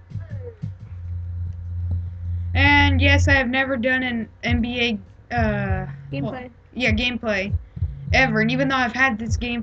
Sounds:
speech

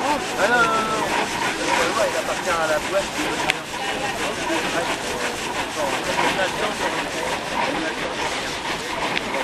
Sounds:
speech
engine

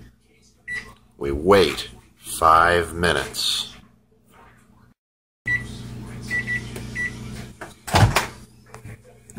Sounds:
microwave oven
speech

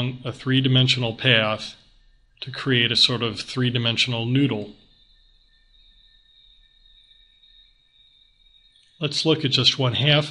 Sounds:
speech

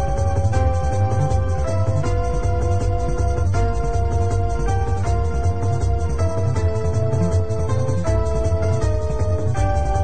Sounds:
music

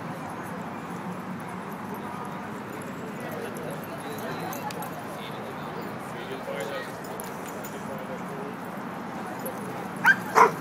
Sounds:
domestic animals
animal
bow-wow
speech
dog

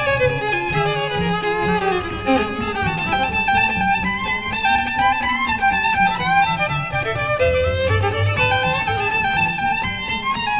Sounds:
music
orchestra
fiddle
musical instrument

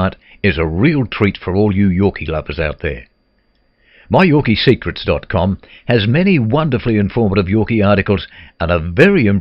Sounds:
speech

